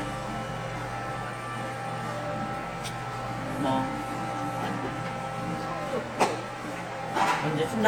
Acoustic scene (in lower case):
cafe